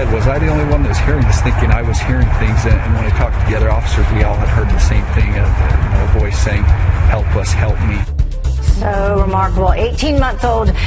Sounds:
Music, Speech

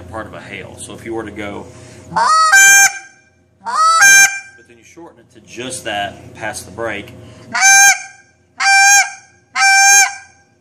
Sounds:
Speech

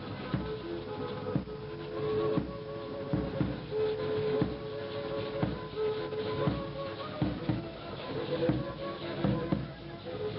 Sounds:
Music, Musical instrument, Violin

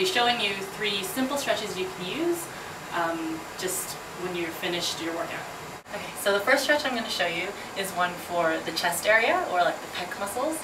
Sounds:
Speech, Vehicle

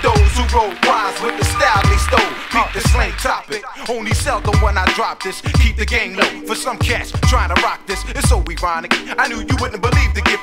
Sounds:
Music

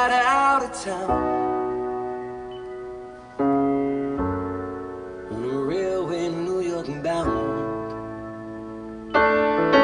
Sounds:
Music, Keyboard (musical)

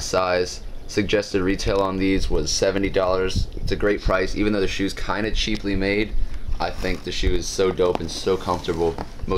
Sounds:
Speech

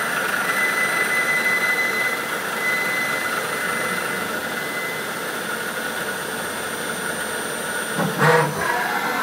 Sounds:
Tools, Power tool

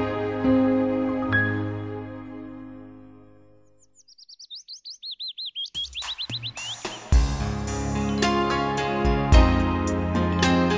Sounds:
Bird vocalization, Bird, Chirp

